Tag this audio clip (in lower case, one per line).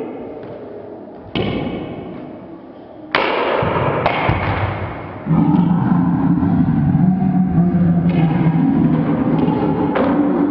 thump
ping